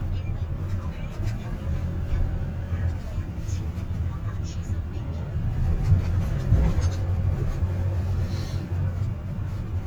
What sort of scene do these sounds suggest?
car